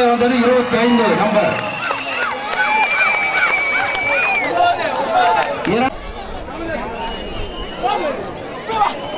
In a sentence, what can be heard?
Horse trotting and man speaking